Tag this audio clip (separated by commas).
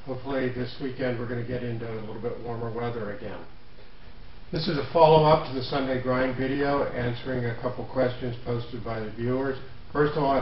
Speech